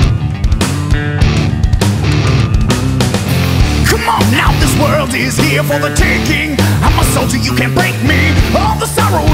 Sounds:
Music

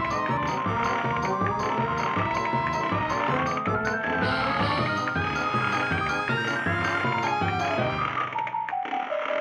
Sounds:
Music

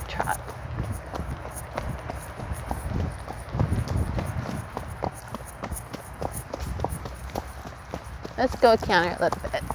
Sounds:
horse clip-clop

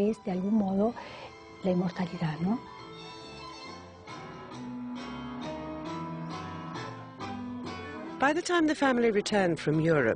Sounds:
Blues, Speech, Music

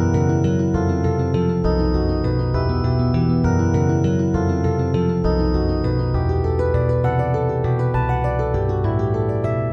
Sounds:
Video game music, Music

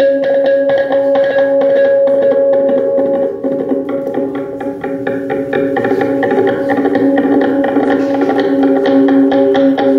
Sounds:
Music

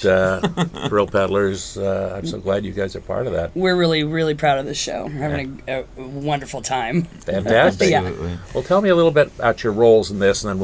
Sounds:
Speech

